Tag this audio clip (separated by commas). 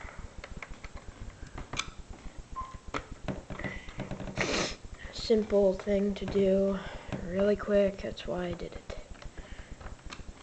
inside a small room, Speech